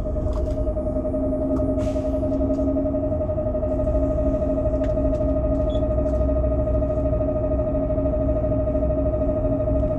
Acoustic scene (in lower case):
bus